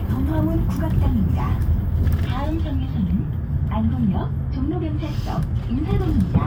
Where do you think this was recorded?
on a bus